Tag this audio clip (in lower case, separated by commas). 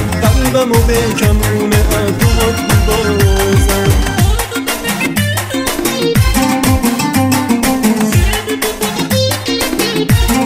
music, folk music